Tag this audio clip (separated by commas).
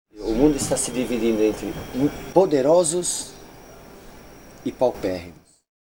Human voice, Speech, Male speech